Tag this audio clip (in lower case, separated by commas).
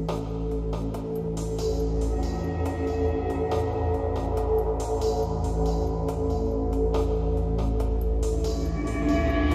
music